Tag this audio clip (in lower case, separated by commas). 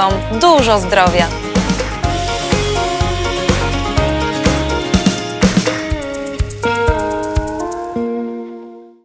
speech, music